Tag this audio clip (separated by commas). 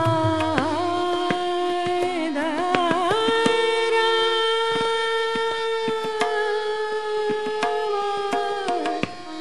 Music, Singing, Carnatic music